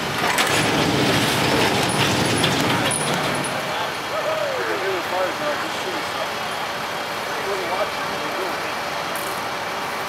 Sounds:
speech, vehicle, truck

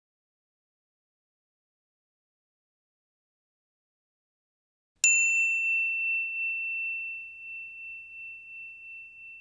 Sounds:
silence

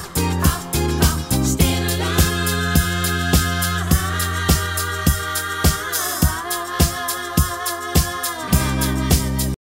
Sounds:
music, rhythm and blues

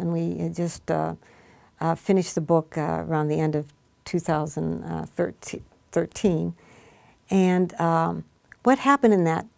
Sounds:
speech, inside a small room

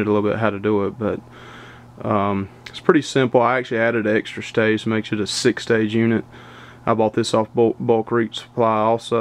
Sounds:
speech

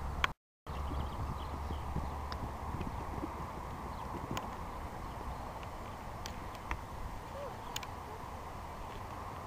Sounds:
horse clip-clop, clip-clop, animal

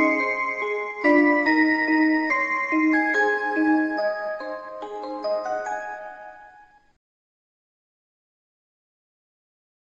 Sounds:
music

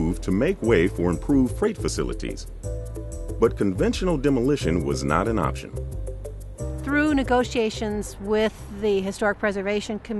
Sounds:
music, speech

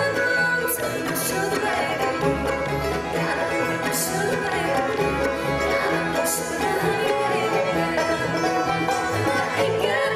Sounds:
music, female singing, choir

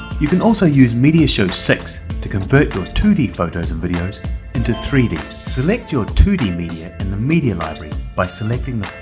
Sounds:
speech, music

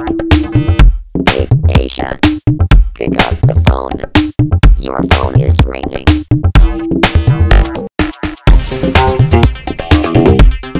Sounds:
soundtrack music, music

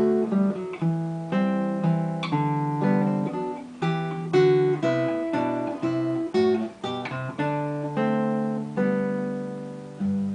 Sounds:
musical instrument, guitar, music, acoustic guitar, strum

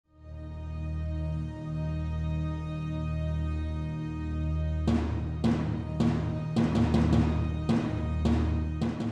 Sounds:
timpani

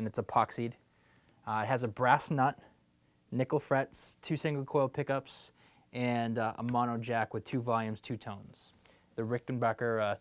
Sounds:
speech

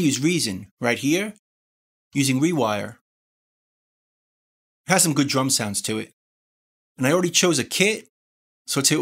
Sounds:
speech

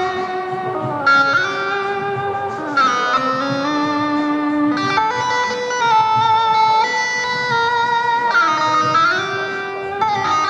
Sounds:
plucked string instrument, music, musical instrument, electric guitar

